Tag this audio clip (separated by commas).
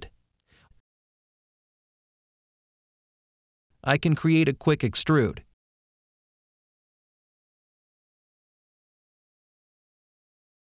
Speech